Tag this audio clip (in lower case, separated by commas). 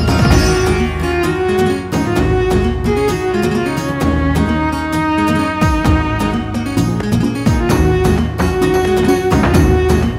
music